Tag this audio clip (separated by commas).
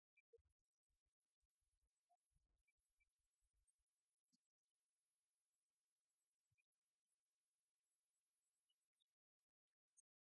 Singing, Orchestra